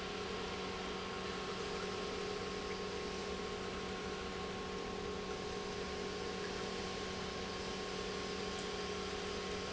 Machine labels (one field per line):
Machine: pump